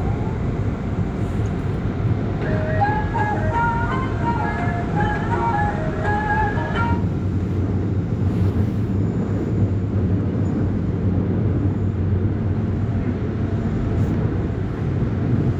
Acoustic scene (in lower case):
subway train